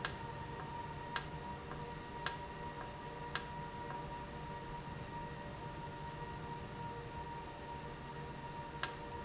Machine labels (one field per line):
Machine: valve